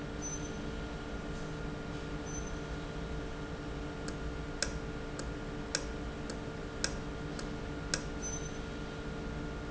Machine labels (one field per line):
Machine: valve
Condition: normal